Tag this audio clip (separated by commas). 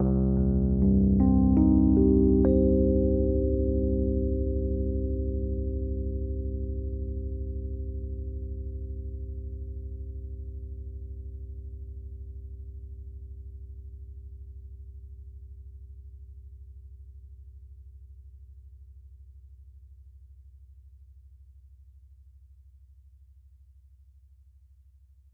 Music, Musical instrument, Keyboard (musical), Piano